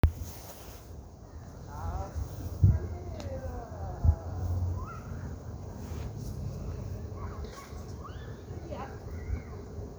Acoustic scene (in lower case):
park